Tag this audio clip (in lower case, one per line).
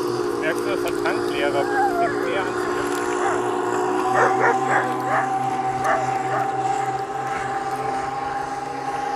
motorboat